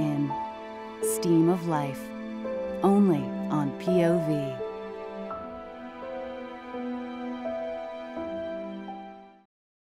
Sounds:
Music, Speech

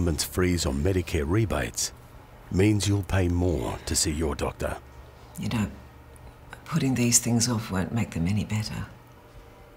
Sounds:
Speech

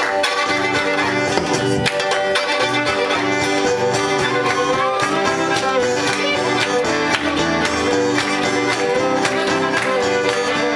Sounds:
Musical instrument, Music, Violin

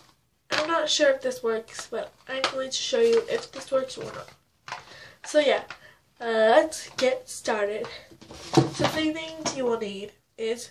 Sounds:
Speech

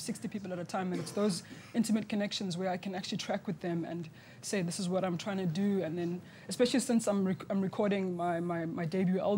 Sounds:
inside a small room, Speech

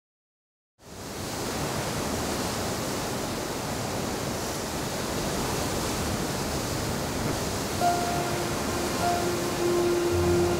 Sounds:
outside, rural or natural, Pink noise, Music

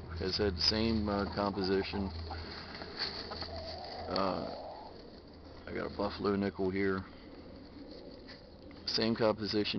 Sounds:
Speech

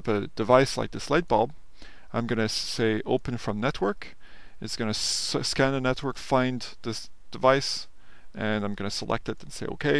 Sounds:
Speech

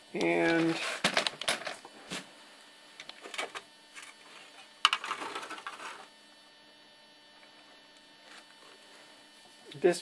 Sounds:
Speech

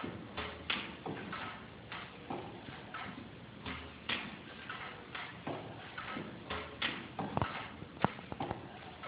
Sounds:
Engine, Idling

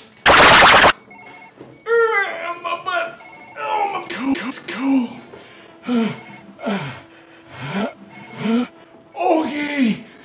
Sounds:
Speech

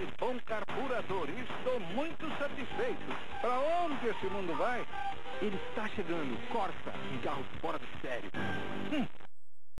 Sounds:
Music, Speech

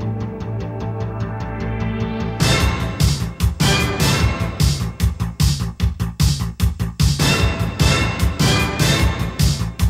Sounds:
Music

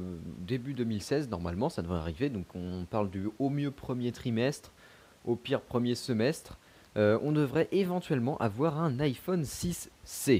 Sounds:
Speech

